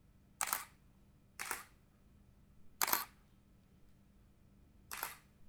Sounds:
Mechanisms, Camera

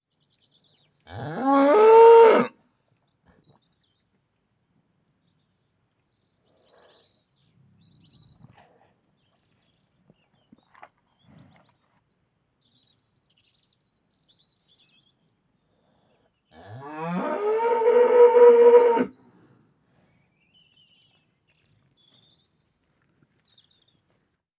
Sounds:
livestock, Animal

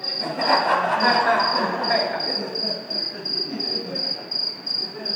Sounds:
Animal, Human voice, Cricket, Insect, Wild animals

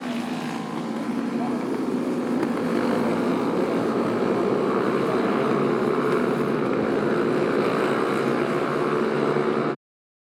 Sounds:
Motorcycle, Vehicle, Motor vehicle (road)

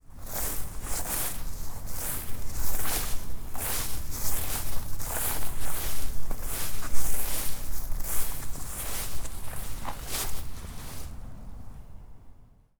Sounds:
crinkling

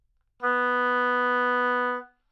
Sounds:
Musical instrument, Music, Wind instrument

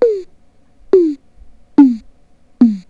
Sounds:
Music, Keyboard (musical), Musical instrument

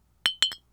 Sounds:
Glass, clink

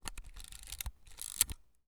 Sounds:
Mechanisms, Camera

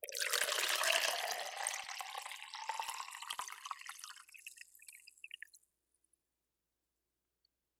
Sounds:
Water, Liquid

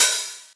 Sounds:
Percussion, Music, Hi-hat, Musical instrument, Cymbal

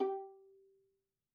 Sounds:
Musical instrument, Bowed string instrument, Music

